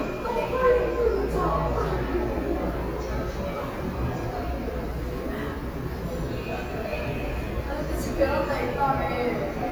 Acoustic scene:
subway station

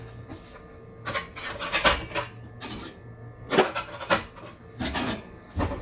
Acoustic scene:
kitchen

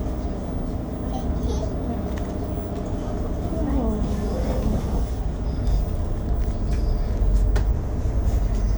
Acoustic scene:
bus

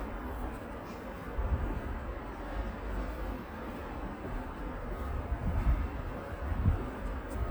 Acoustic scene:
residential area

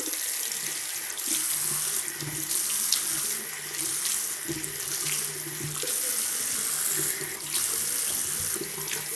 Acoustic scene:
restroom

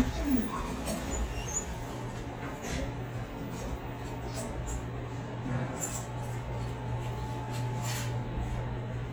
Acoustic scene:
elevator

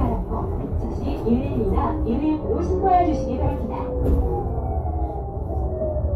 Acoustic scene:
bus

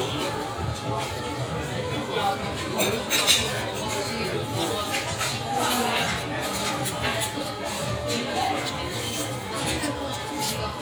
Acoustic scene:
restaurant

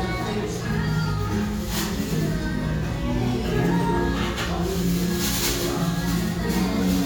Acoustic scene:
restaurant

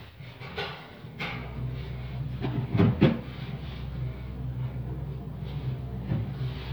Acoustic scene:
elevator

